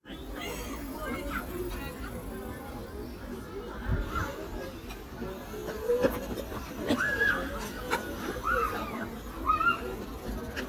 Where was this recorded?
in a park